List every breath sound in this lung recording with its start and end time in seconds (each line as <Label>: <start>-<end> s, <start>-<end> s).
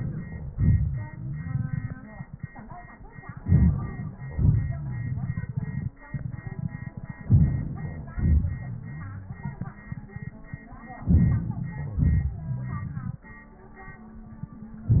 Inhalation: 3.39-4.14 s, 7.23-8.09 s, 11.07-11.94 s
Exhalation: 0.53-2.38 s, 4.14-5.98 s, 8.10-9.74 s, 11.91-14.01 s
Crackles: 1.01-2.03 s, 4.17-5.52 s, 8.71-9.46 s, 12.29-13.13 s